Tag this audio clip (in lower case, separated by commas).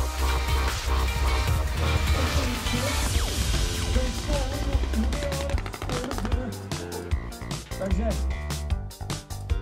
speech, music